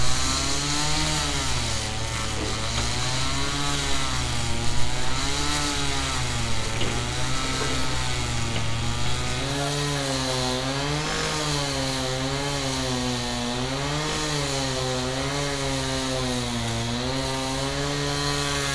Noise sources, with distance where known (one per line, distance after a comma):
chainsaw